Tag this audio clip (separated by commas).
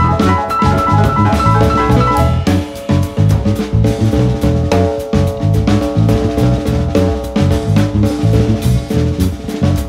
Music, Musical instrument, Drum kit